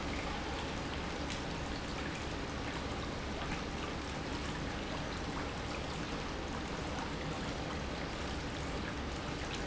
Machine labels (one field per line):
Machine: pump